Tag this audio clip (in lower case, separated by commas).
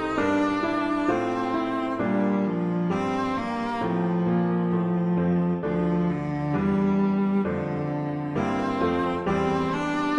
musical instrument, music